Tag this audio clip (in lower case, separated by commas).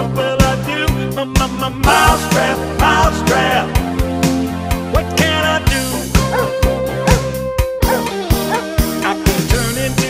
music